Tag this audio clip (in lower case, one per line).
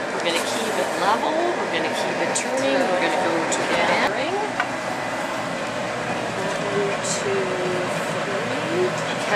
inside a public space
speech